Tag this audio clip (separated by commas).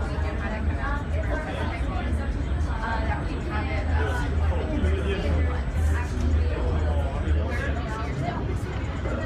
Speech